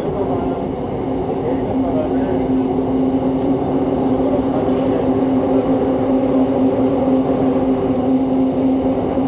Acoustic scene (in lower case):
subway train